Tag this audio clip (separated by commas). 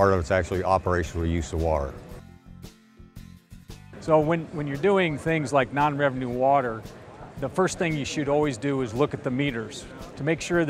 Speech, Music